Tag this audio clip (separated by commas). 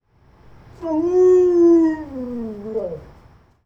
pets, Animal, Dog